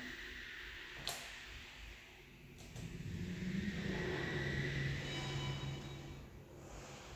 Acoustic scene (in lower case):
elevator